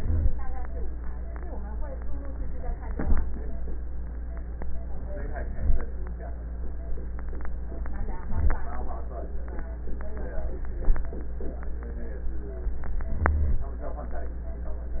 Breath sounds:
0.00-0.29 s: rhonchi
2.90-3.55 s: inhalation
5.25-5.90 s: inhalation
8.10-8.75 s: inhalation
13.11-13.68 s: inhalation

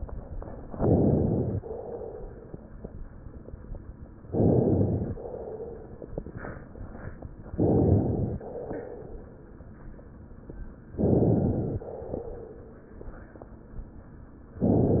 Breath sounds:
0.70-1.58 s: inhalation
1.58-2.77 s: exhalation
4.31-5.12 s: inhalation
5.14-6.05 s: exhalation
7.55-8.43 s: inhalation
8.41-9.62 s: exhalation
10.98-11.86 s: inhalation
11.83-12.96 s: exhalation

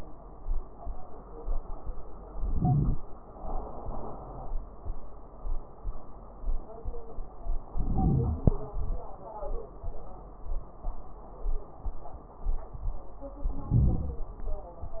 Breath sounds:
2.28-3.00 s: inhalation
2.28-3.00 s: crackles
3.71-4.55 s: exhalation
7.70-8.56 s: wheeze
7.71-8.56 s: inhalation
8.62-9.18 s: exhalation
8.64-9.16 s: crackles
13.45-14.30 s: inhalation
13.45-14.30 s: crackles

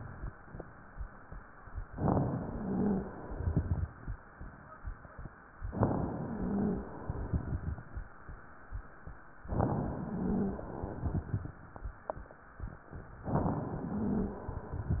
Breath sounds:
1.87-3.21 s: inhalation
2.39-3.09 s: wheeze
3.24-4.16 s: exhalation
3.24-4.16 s: crackles
5.61-6.95 s: inhalation
6.17-6.87 s: wheeze
7.02-7.94 s: exhalation
7.02-7.94 s: crackles
9.43-10.78 s: inhalation
10.05-10.67 s: wheeze
10.80-11.62 s: exhalation
10.80-11.62 s: crackles
13.31-14.66 s: inhalation
13.85-14.42 s: wheeze
14.68-15.00 s: exhalation
14.68-15.00 s: crackles

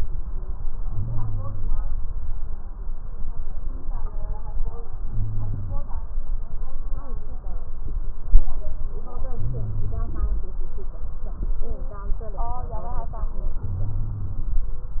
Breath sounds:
0.78-1.84 s: inhalation
5.05-6.00 s: inhalation
9.36-10.44 s: inhalation
13.64-14.61 s: inhalation

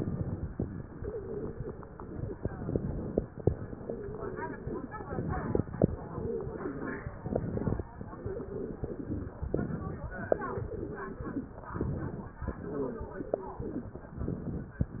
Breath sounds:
0.89-2.32 s: wheeze
2.41-3.15 s: inhalation
3.66-5.09 s: wheeze
5.08-5.75 s: inhalation
5.92-7.08 s: wheeze
7.25-7.91 s: inhalation
8.16-9.32 s: wheeze
9.51-10.25 s: inhalation
10.27-11.54 s: wheeze
11.73-12.39 s: inhalation
12.45-13.72 s: wheeze
14.15-14.82 s: inhalation

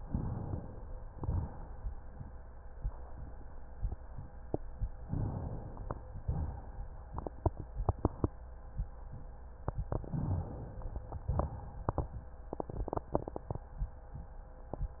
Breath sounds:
1.12-1.88 s: exhalation
5.07-6.05 s: inhalation
6.24-6.89 s: exhalation
9.91-11.10 s: inhalation
11.29-12.25 s: exhalation

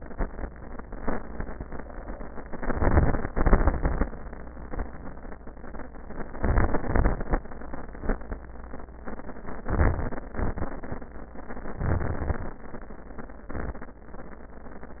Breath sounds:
2.46-3.25 s: crackles
2.50-3.29 s: inhalation
3.30-4.09 s: exhalation
3.30-4.09 s: crackles
6.33-6.86 s: inhalation
6.33-6.86 s: crackles
6.89-7.43 s: exhalation
6.89-7.43 s: crackles
9.70-10.23 s: inhalation
9.70-10.23 s: crackles
10.32-11.04 s: exhalation
10.32-11.04 s: crackles
11.78-12.60 s: inhalation
11.78-12.60 s: crackles
13.47-13.99 s: exhalation
13.47-13.99 s: crackles

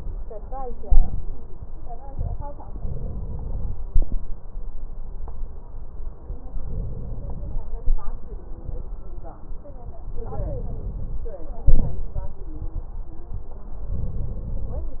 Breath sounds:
0.84-1.25 s: exhalation
2.63-3.87 s: inhalation
6.42-7.66 s: inhalation
10.10-11.34 s: inhalation
11.69-12.10 s: exhalation
13.92-14.96 s: inhalation

